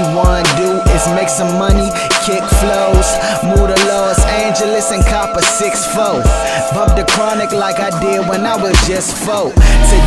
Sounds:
Music

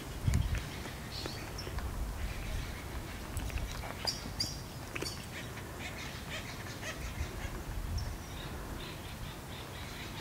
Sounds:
woodpecker pecking tree

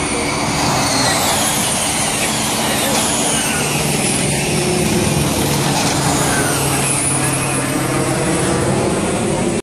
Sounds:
Speech

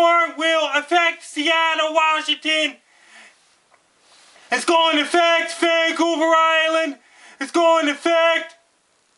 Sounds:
Speech

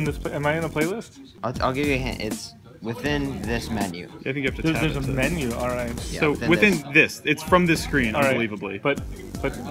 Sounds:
Music, Speech

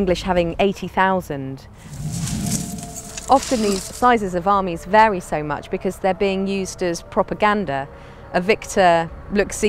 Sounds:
Speech

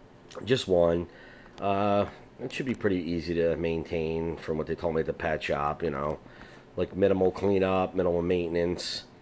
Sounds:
Speech

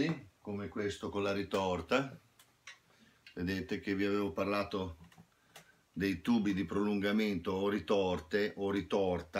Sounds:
Speech

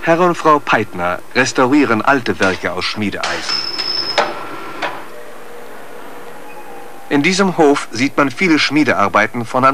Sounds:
Hammer

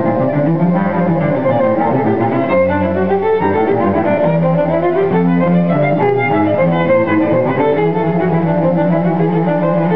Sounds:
Violin, Bowed string instrument, Cello

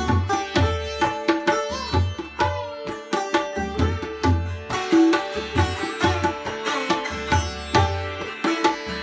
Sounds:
playing sitar

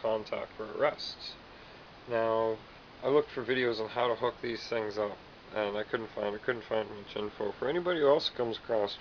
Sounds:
Speech

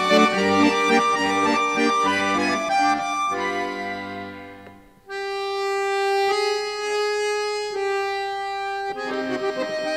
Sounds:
playing accordion

